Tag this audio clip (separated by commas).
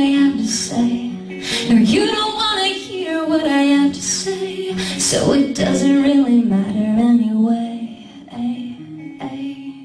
inside a small room, Music, Female singing